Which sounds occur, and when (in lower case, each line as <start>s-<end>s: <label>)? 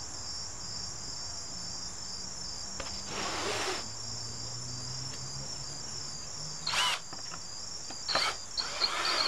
0.0s-9.2s: cricket
0.0s-9.2s: wind
2.6s-7.0s: motor vehicle (road)
2.8s-3.0s: generic impact sounds
3.0s-3.8s: scrape
5.0s-5.2s: generic impact sounds
6.6s-7.0s: drill
7.1s-7.4s: generic impact sounds
7.8s-8.0s: generic impact sounds
8.0s-8.4s: drill
8.1s-8.2s: generic impact sounds
8.6s-9.2s: drill